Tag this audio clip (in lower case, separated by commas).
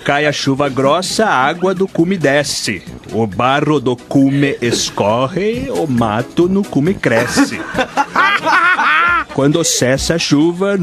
speech, music